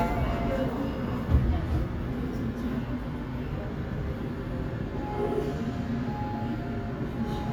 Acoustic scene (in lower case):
subway train